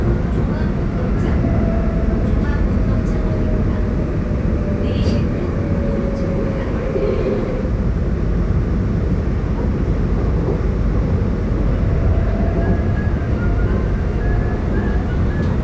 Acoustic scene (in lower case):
subway train